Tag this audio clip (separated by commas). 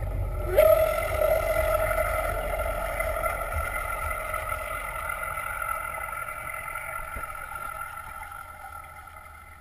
Vehicle, Motorboat, Water vehicle